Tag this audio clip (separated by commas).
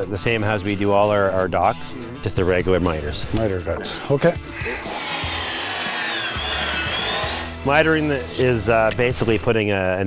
outside, rural or natural, Music, Speech